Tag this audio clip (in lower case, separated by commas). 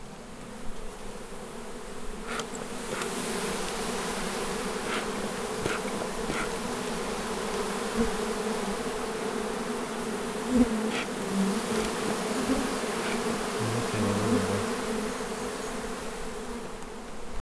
wild animals, insect, animal